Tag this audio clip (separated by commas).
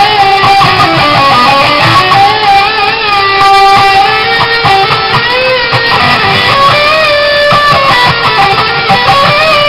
Electric guitar, Music, Guitar, Musical instrument